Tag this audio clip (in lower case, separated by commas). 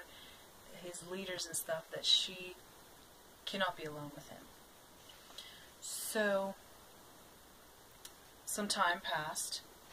speech, inside a small room